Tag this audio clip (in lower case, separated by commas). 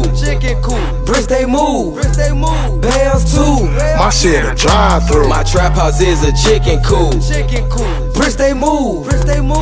music